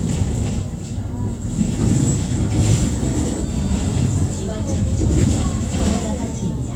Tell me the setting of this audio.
bus